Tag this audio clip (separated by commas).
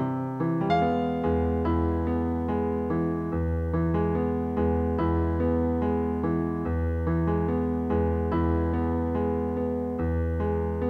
Music